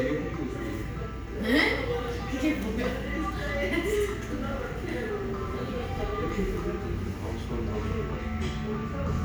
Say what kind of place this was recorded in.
cafe